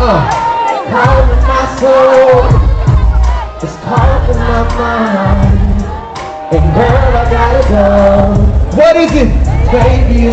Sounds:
Music, Male singing, Speech

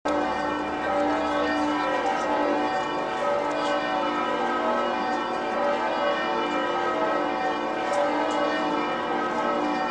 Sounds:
Change ringing (campanology)

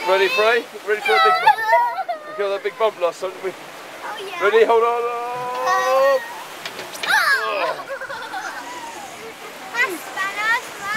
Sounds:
Stream, Gurgling, Speech

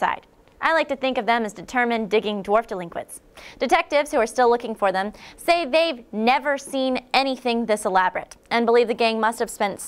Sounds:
Speech

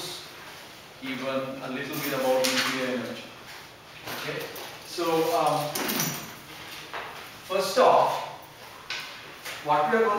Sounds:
Speech

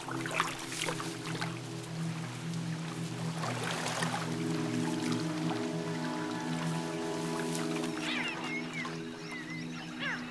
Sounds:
Animal

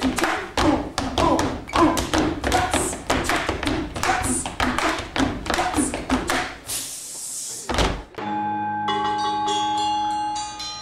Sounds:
Music, Tap

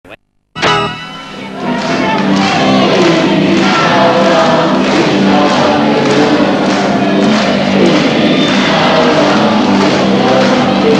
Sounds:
Music

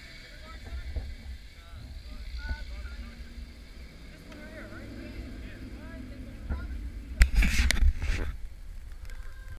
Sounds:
Speech, vroom, Vehicle, Car

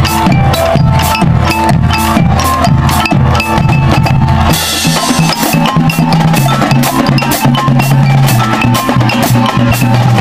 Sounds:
Percussion, Music

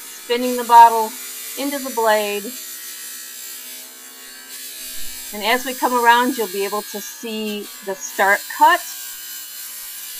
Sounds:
Speech

